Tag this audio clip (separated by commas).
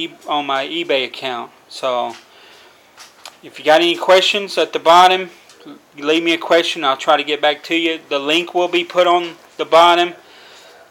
Speech